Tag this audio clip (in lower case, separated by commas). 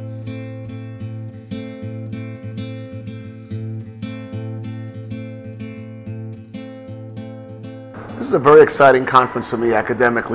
music, speech